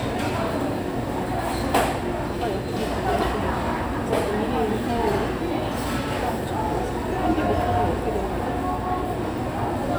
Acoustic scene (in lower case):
restaurant